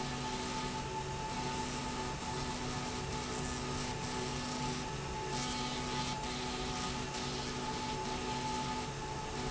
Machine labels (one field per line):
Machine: slide rail